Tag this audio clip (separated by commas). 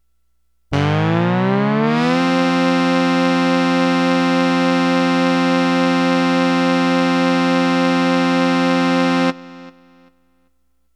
Keyboard (musical), Musical instrument, Music